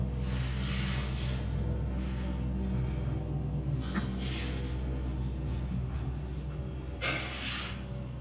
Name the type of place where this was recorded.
elevator